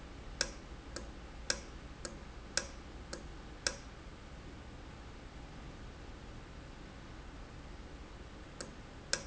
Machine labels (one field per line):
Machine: valve